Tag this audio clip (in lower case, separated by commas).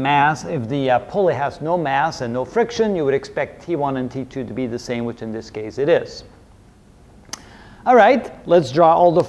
speech